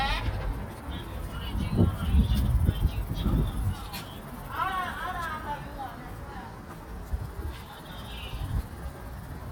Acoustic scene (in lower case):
residential area